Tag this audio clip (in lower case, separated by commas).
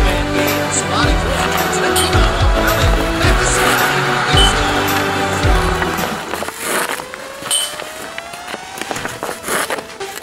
music